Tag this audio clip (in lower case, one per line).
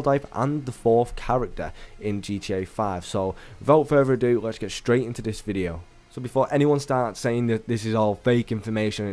music
speech